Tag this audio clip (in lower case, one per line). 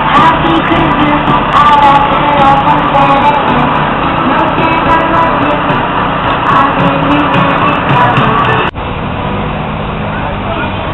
music
vehicle